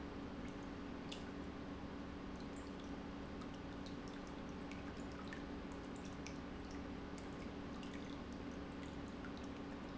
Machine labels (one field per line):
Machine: pump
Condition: normal